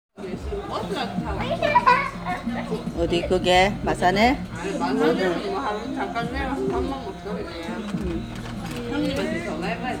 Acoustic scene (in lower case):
crowded indoor space